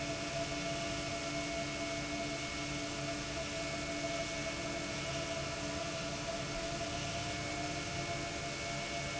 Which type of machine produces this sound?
pump